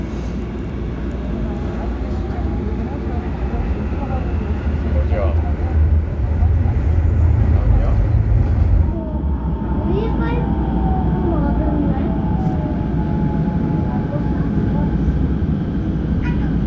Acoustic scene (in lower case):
subway train